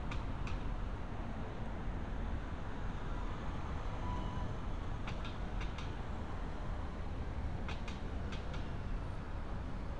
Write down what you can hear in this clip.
medium-sounding engine